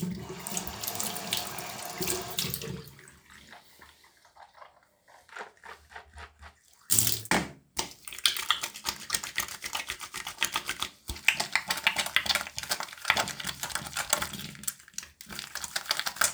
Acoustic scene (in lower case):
restroom